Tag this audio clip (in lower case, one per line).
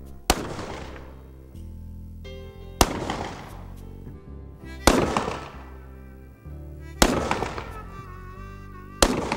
music